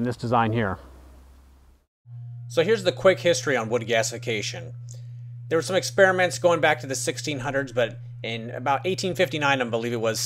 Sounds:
Speech

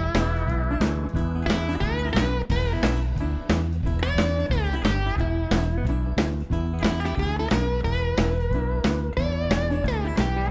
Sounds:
Music

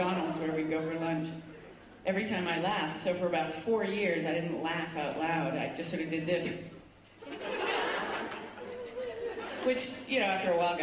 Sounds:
Speech

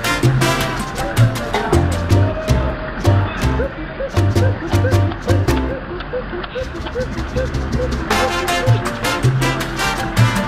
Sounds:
Music

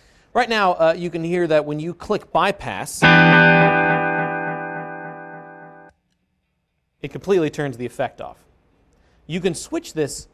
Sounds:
Music, Musical instrument, Effects unit, Speech, Guitar

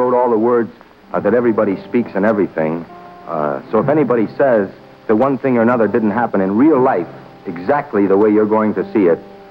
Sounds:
Speech, Music

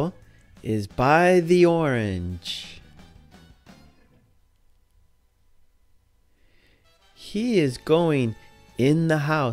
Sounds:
Music, Speech

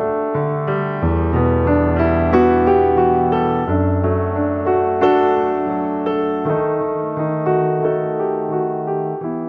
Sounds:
Speech, Music

